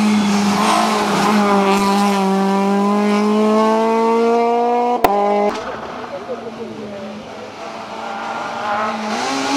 Humming and accelerating as a car speeds by